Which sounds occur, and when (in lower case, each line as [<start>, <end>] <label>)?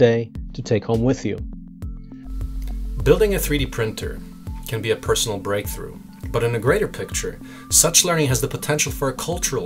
[0.00, 0.29] male speech
[0.00, 9.65] music
[0.45, 1.39] male speech
[1.94, 2.26] breathing
[1.94, 9.65] background noise
[3.04, 4.17] male speech
[4.64, 6.00] male speech
[6.09, 6.25] tick
[6.33, 7.36] male speech
[7.36, 7.68] breathing
[7.68, 9.65] male speech